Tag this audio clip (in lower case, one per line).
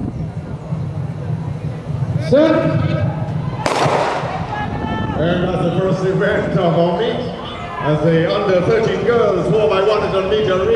outside, urban or man-made
speech